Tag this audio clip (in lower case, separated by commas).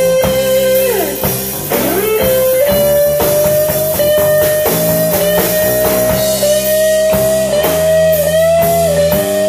electric guitar, drum, guitar, music, rock music, musical instrument, plucked string instrument